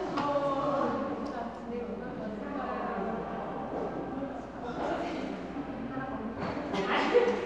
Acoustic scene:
crowded indoor space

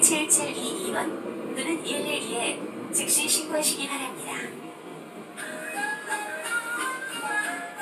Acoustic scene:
subway train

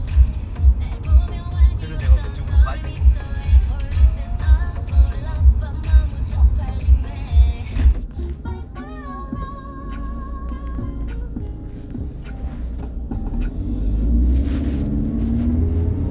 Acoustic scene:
car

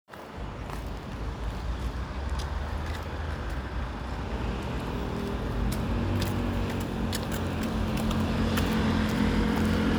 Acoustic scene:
street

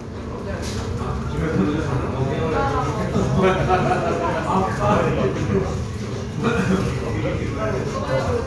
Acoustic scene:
crowded indoor space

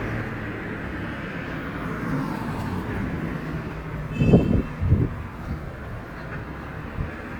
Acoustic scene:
residential area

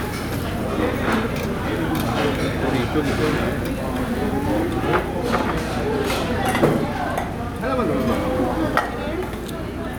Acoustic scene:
crowded indoor space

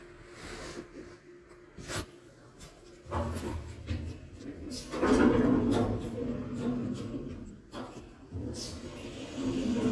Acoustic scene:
elevator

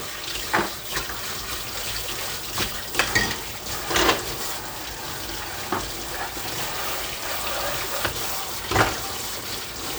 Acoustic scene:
kitchen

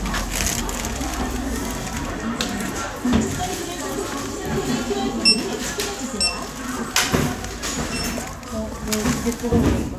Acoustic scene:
crowded indoor space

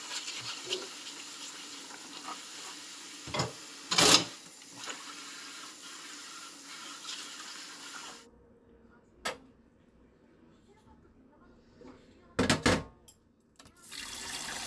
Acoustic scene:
kitchen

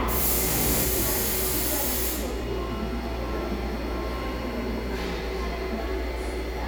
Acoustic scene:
subway station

